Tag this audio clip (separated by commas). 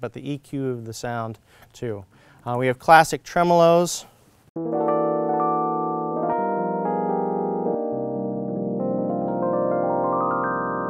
Piano, Keyboard (musical), Electric piano